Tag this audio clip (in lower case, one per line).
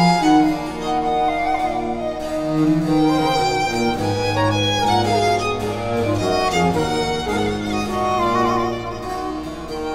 musical instrument
music
string section
classical music
bowed string instrument
violin
piano